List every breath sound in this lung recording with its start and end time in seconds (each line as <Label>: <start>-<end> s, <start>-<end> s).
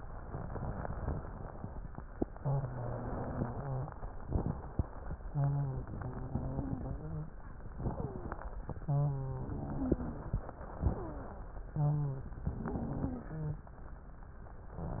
Inhalation: 4.22-5.14 s, 7.79-8.65 s, 10.58-11.69 s
Exhalation: 2.31-3.98 s, 5.28-7.35 s, 8.83-10.46 s, 11.71-13.73 s
Wheeze: 2.31-3.98 s, 5.28-7.35 s, 7.89-8.57 s, 8.83-10.46 s, 10.92-11.35 s, 11.71-13.73 s
Crackles: 4.22-5.14 s